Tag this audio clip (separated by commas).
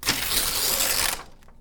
Tearing